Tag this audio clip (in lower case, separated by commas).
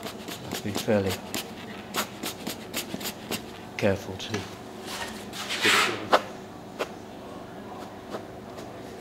speech